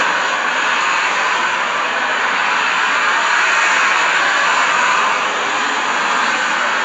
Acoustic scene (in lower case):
street